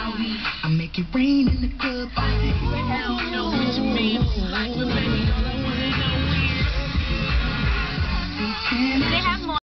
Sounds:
Speech, Music

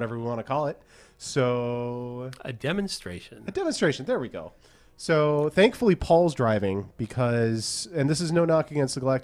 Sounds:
Speech

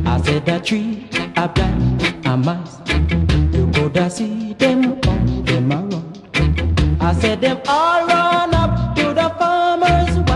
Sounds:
Music

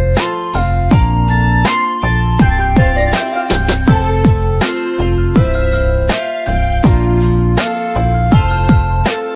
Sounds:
Music

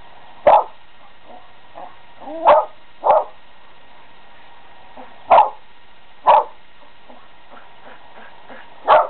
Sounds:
Bow-wow, dog bow-wow

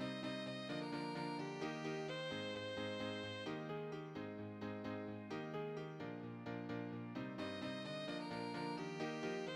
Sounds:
Music, Musical instrument

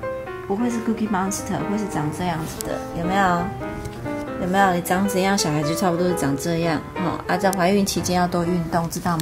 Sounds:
Speech, Music

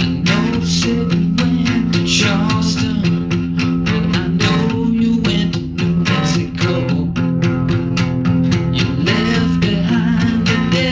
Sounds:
Music

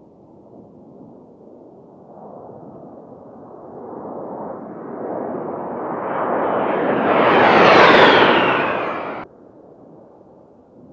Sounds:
airplane flyby

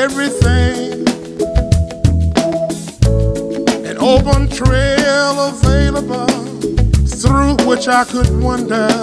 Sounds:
Music

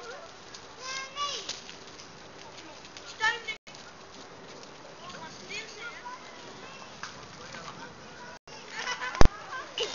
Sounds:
Speech

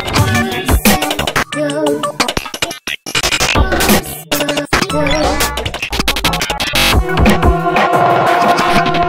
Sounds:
Music

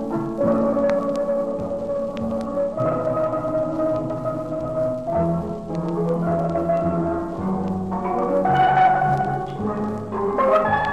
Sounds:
Steelpan, Music

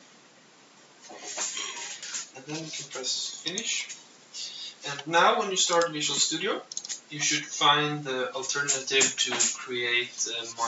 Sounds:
Speech, inside a small room

